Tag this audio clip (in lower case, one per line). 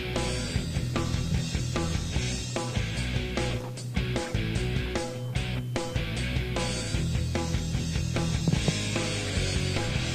music